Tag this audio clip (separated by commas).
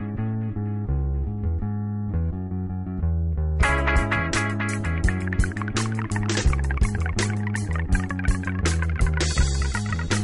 Music